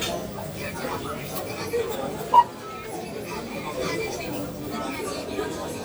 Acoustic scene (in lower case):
crowded indoor space